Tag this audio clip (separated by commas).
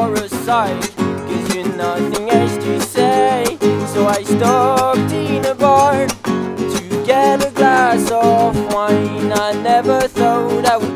Music